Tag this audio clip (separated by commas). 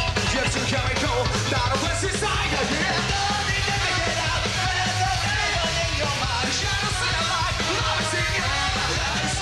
Music